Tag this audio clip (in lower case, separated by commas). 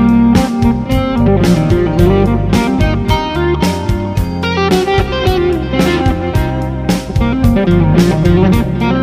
guitar, music, plucked string instrument, musical instrument